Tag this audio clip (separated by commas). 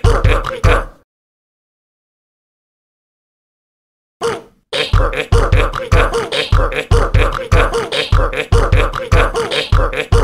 Music